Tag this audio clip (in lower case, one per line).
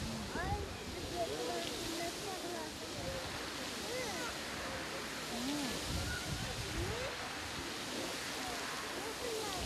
water